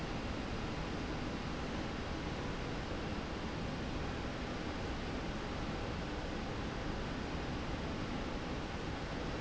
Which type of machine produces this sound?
slide rail